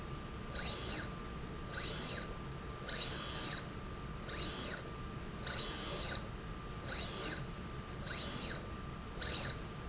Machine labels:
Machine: slide rail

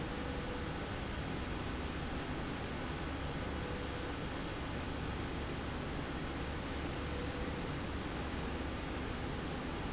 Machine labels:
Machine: slide rail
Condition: normal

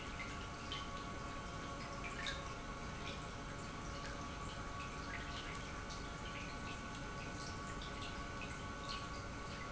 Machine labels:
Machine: pump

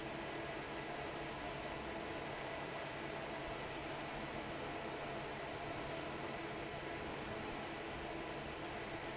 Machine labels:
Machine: fan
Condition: normal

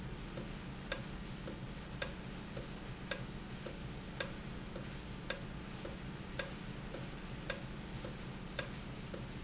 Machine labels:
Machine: valve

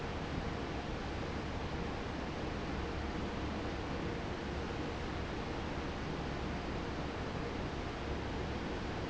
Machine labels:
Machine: fan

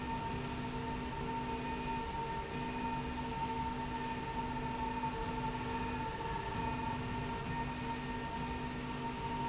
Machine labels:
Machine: slide rail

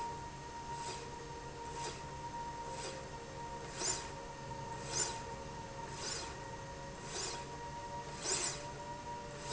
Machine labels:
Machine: slide rail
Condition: normal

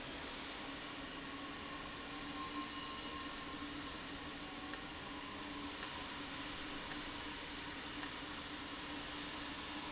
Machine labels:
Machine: valve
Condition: abnormal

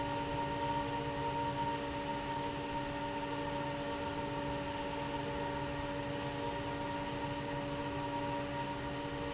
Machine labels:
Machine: fan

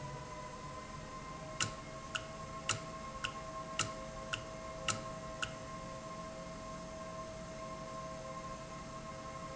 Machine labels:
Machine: valve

